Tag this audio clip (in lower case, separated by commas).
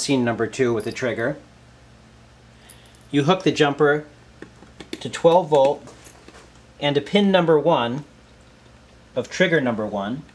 speech